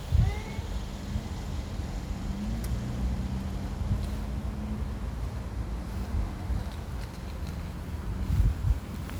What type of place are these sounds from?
residential area